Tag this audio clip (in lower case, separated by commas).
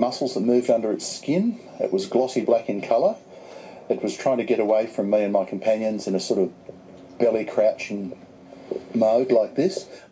speech